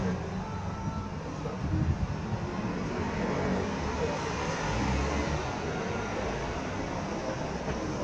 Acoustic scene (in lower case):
street